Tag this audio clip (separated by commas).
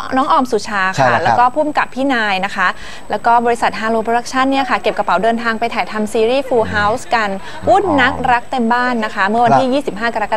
Speech